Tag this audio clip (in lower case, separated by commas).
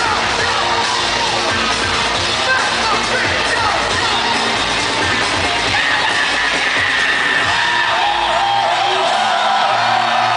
electronic music, music, crowd